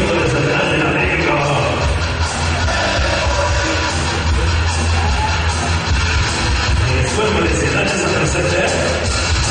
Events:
[0.00, 1.88] man speaking
[0.00, 9.50] crowd
[0.00, 9.50] music
[2.53, 3.90] speech
[5.03, 5.59] man speaking
[6.85, 9.07] man speaking

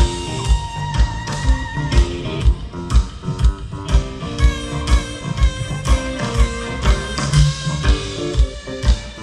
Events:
[0.00, 9.22] music

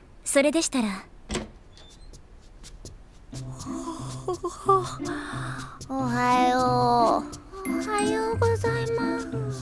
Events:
[0.00, 9.61] background noise
[0.12, 0.96] woman speaking
[1.23, 1.38] slam
[2.05, 2.16] walk
[2.38, 2.88] walk
[3.11, 3.48] walk
[3.25, 5.74] human voice
[3.29, 9.61] music
[3.98, 4.46] walk
[4.76, 4.98] walk
[5.55, 5.91] walk
[5.77, 7.24] woman speaking
[6.35, 6.62] walk
[6.86, 7.37] walk
[7.54, 9.61] woman speaking

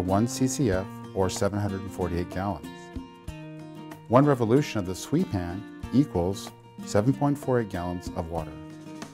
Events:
[0.00, 0.78] man speaking
[0.00, 9.13] music
[1.12, 2.52] man speaking
[4.04, 5.53] man speaking
[5.81, 6.48] man speaking
[6.77, 8.43] man speaking

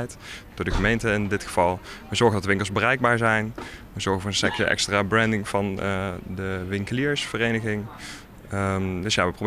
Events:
[0.00, 0.48] breathing
[0.00, 9.45] background noise
[0.54, 1.78] man speaking
[1.76, 2.09] breathing
[2.09, 3.45] man speaking
[3.56, 3.84] breathing
[3.91, 6.17] man speaking
[6.40, 7.89] man speaking
[7.98, 8.27] breathing
[8.52, 9.45] man speaking

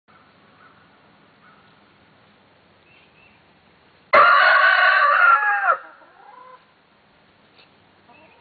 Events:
[0.05, 8.40] wind
[0.06, 0.18] tweet
[0.48, 0.70] tweet
[1.38, 1.56] tweet
[2.83, 3.31] tweet
[4.09, 5.79] crowing
[5.84, 6.61] rooster
[7.54, 7.63] tweet
[8.05, 8.40] tweet

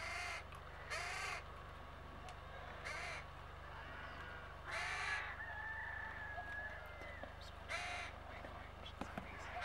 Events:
[0.00, 9.64] mechanisms
[2.18, 2.34] tick
[5.40, 7.35] crowing
[8.25, 9.55] television
[8.93, 9.28] tap
[8.94, 9.59] male speech

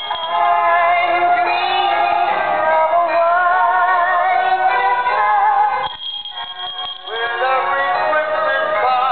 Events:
[0.00, 5.51] female singing
[0.01, 9.11] music
[5.74, 7.22] bell
[7.03, 9.11] male singing

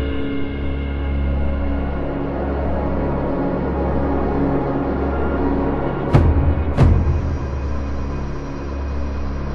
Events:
[0.00, 9.54] music
[0.00, 9.54] sound effect

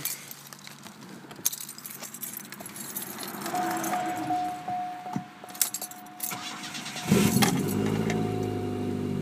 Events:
[0.00, 6.14] car passing by
[6.24, 9.21] car
[6.26, 7.03] engine starting
[8.05, 8.21] generic impact sounds
[8.40, 8.48] keys jangling

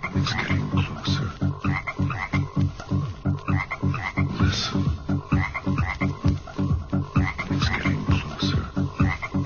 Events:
[0.00, 1.26] male singing
[0.00, 9.45] music
[4.26, 4.72] male singing
[7.44, 8.51] male singing

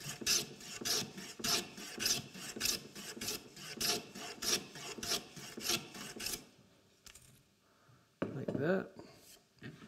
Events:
[0.00, 0.40] scrape
[0.00, 9.85] background noise
[0.57, 0.99] scrape
[1.14, 1.59] scrape
[1.76, 2.15] scrape
[2.31, 2.75] scrape
[2.94, 3.32] scrape
[3.53, 3.96] scrape
[4.11, 4.54] scrape
[4.73, 5.14] scrape
[5.35, 5.74] scrape
[5.91, 6.35] scrape
[7.00, 7.42] generic impact sounds
[7.58, 8.10] breathing
[8.18, 8.60] generic impact sounds
[8.21, 8.86] male speech
[8.93, 9.37] breathing
[9.53, 9.85] generic impact sounds

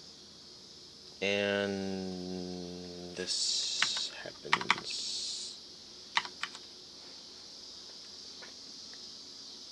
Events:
[0.00, 9.71] insect
[0.00, 9.71] mechanisms
[1.19, 3.34] man speaking
[3.24, 4.08] human sounds
[3.80, 4.03] computer keyboard
[4.49, 4.80] computer keyboard
[4.82, 5.50] human sounds
[6.15, 6.28] computer keyboard
[6.40, 6.56] computer keyboard
[6.94, 7.53] generic impact sounds
[7.85, 8.08] generic impact sounds
[8.38, 8.54] generic impact sounds
[8.88, 8.99] generic impact sounds

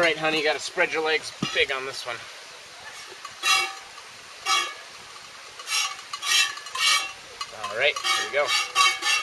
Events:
[0.00, 9.22] background noise
[0.03, 1.28] man speaking
[0.34, 0.42] cowbell
[0.86, 0.96] cowbell
[1.40, 2.22] man speaking
[2.91, 3.03] cowbell
[3.16, 3.27] cowbell
[3.43, 3.70] generic impact sounds
[4.44, 4.70] generic impact sounds
[5.53, 5.61] cowbell
[5.63, 5.90] generic impact sounds
[5.84, 6.19] cowbell
[6.19, 6.55] generic impact sounds
[6.46, 6.69] cowbell
[6.67, 7.00] generic impact sounds
[7.33, 7.44] cowbell
[7.44, 7.89] man speaking
[7.58, 7.68] cowbell
[7.87, 8.02] cowbell
[8.02, 8.27] generic impact sounds
[8.05, 8.43] man speaking
[8.43, 8.63] generic impact sounds
[8.72, 9.22] generic impact sounds

